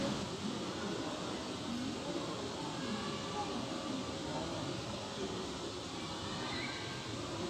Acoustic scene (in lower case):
park